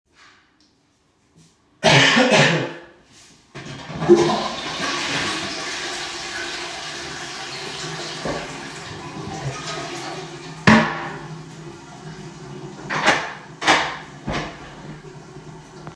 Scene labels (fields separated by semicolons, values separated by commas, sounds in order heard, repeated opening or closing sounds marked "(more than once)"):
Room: lavatory; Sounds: toilet flushing, door